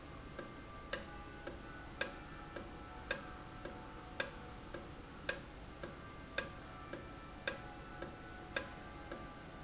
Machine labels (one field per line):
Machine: valve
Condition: normal